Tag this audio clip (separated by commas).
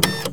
Printer, Mechanisms